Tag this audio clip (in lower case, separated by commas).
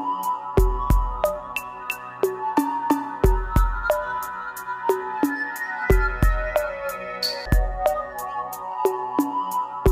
music